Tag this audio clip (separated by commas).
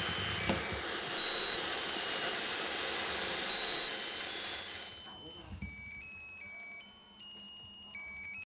Music, Speech